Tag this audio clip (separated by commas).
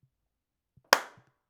Hands, Clapping